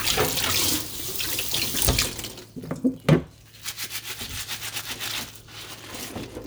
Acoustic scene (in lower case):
kitchen